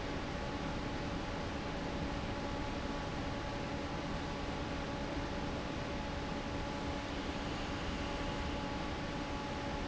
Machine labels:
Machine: fan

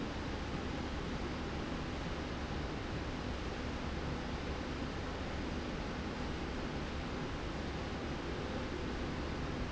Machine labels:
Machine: slide rail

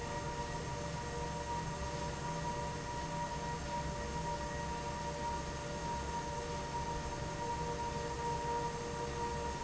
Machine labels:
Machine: fan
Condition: abnormal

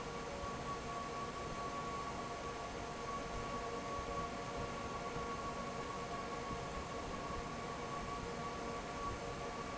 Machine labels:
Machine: fan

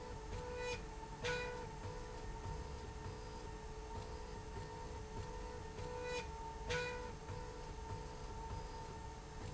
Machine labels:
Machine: slide rail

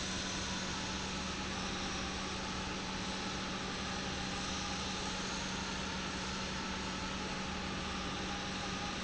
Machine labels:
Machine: pump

